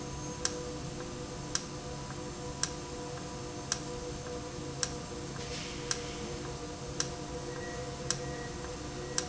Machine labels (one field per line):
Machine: valve